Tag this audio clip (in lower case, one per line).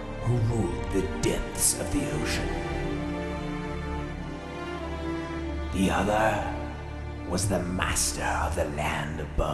music
speech